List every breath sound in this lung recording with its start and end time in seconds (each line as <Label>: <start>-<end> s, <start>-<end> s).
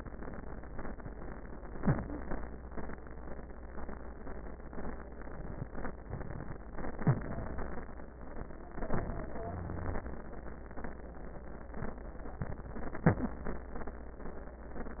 Inhalation: 1.78-2.26 s, 6.08-6.58 s, 8.74-9.34 s
Exhalation: 6.72-7.78 s, 9.40-10.03 s
Wheeze: 1.78-2.26 s, 6.93-7.27 s, 9.40-10.03 s, 12.95-13.44 s